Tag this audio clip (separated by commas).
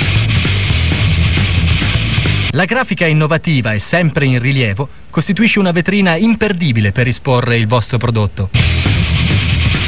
Music, Speech